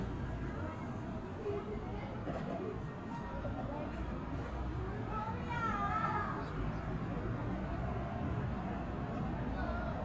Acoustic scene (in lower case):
residential area